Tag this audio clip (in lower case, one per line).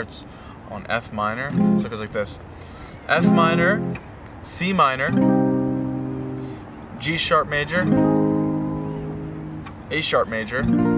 acoustic guitar
speech
guitar
plucked string instrument
musical instrument
music